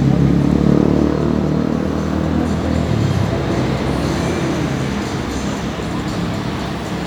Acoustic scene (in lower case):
street